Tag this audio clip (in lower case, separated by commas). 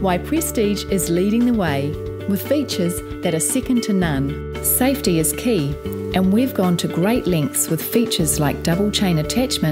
speech, music